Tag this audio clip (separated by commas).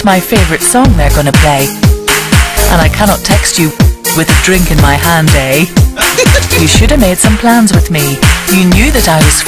Music, Speech